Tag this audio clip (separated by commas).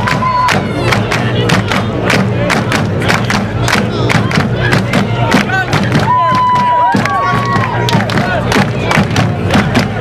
Crowd, Cheering